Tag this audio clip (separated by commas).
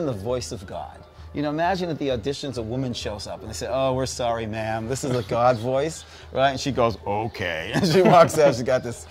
Speech